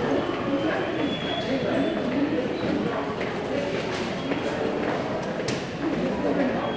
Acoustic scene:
subway station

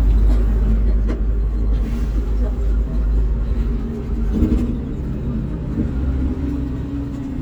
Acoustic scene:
bus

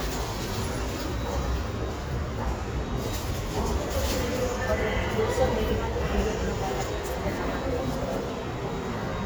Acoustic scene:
subway station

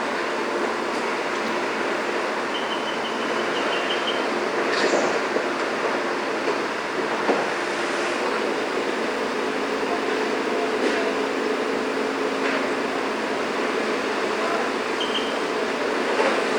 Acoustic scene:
street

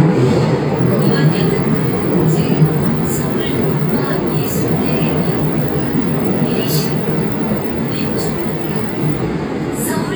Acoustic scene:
subway train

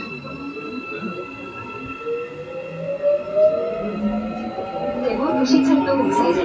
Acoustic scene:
subway train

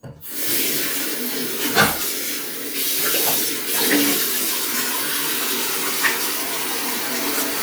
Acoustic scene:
restroom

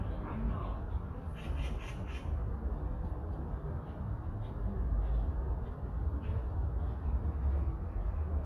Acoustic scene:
park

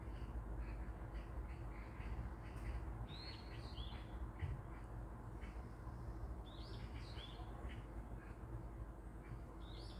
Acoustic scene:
park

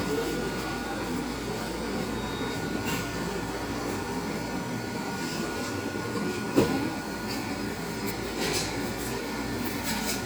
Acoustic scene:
cafe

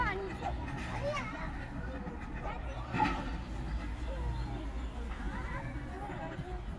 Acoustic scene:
park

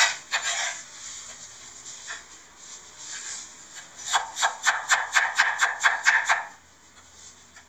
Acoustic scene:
kitchen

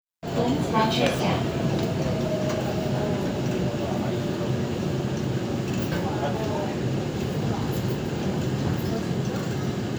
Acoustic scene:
subway train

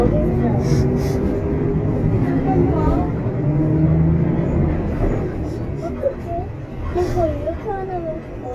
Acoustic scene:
bus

